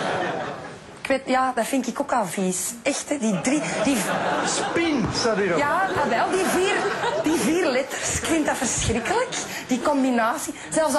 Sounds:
Speech

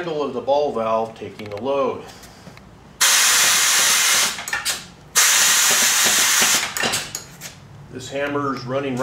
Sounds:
Speech

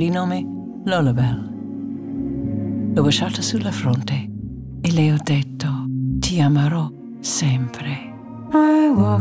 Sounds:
Speech, Music

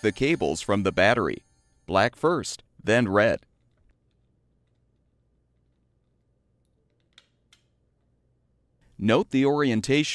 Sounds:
Speech

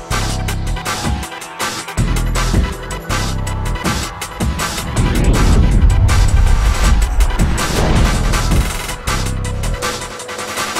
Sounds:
Music

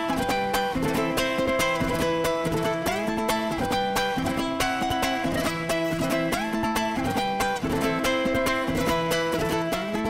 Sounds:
playing ukulele

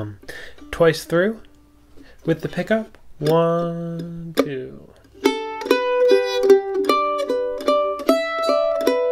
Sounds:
playing mandolin

